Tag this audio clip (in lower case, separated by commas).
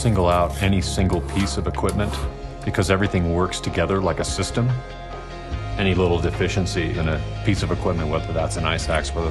music, speech